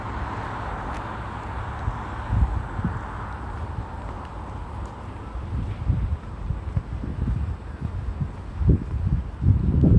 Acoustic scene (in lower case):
residential area